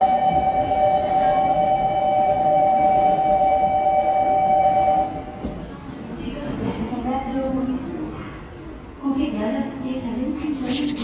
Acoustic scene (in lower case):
subway station